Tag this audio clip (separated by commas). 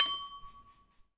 Glass, Domestic sounds, dishes, pots and pans, Bell